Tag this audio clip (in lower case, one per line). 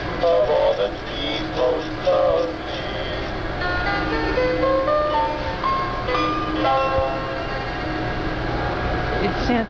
music
speech